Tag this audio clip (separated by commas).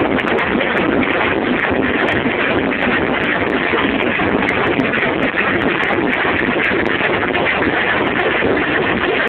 Music